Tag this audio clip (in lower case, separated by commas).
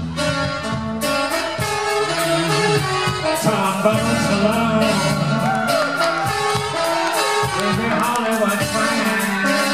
drum kit, drum, rock and roll, musical instrument, music, singing